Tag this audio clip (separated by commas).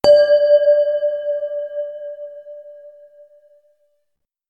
Bell